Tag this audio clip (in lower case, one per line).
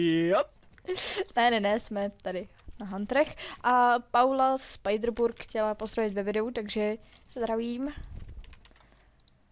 speech